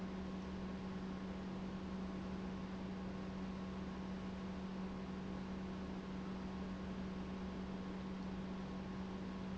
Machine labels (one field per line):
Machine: pump